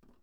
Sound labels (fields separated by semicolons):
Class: cupboard; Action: opening; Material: wooden